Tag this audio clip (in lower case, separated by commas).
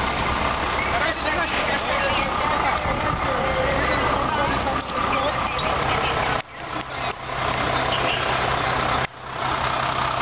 fire, vehicle, speech, truck, motor vehicle (road)